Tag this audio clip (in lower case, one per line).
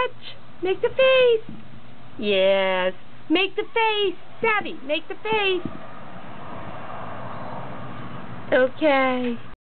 speech